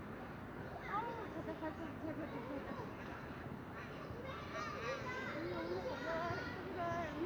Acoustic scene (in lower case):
residential area